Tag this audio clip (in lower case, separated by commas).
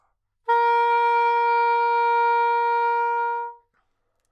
musical instrument, wind instrument, music